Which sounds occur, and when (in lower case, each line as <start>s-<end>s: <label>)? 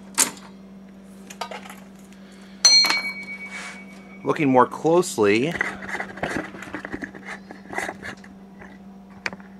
0.0s-9.5s: mechanisms
0.1s-0.5s: generic impact sounds
0.8s-0.9s: tick
1.2s-1.8s: generic impact sounds
2.0s-2.1s: tick
2.1s-2.6s: breathing
2.6s-3.0s: generic impact sounds
2.6s-4.3s: ding
3.2s-3.2s: tick
3.4s-4.0s: generic impact sounds
3.4s-3.8s: surface contact
3.9s-4.0s: tick
4.2s-5.5s: man speaking
5.5s-8.3s: generic impact sounds
8.5s-8.7s: generic impact sounds
9.1s-9.5s: generic impact sounds
9.2s-9.3s: tick